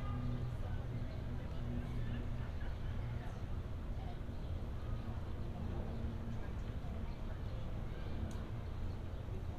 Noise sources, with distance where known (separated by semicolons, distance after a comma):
person or small group talking, far